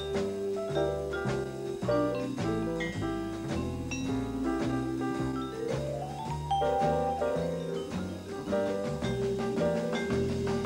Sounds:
playing vibraphone

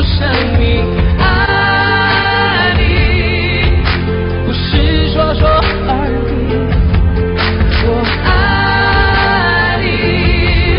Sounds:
Pop music, Music, Singing

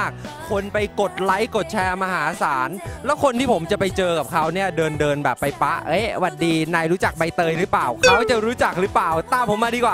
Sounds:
Speech, Music

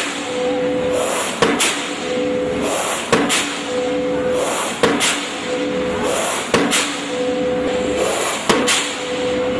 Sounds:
Tools

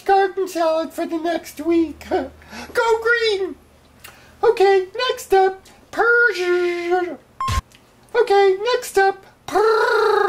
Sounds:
Speech, inside a small room

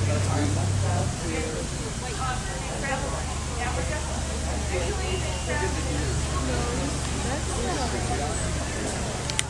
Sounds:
Speech

